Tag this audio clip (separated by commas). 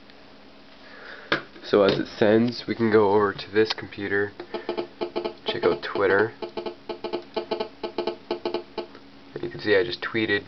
Speech